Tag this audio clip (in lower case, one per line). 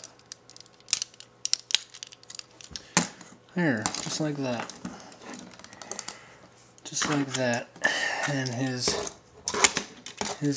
inside a small room
speech